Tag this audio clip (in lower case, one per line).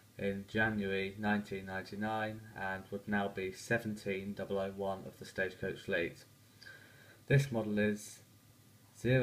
speech